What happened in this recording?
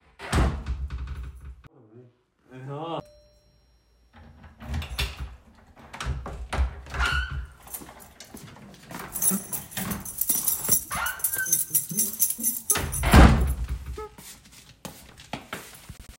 The doorbell rang, and I walked toward the entrance. I unlocked the door using my keychain and opened it. While closing the door, the keys were still jingling, creating overlapping sounds between the keychain and the door movement. After closing the door, I walked into the room.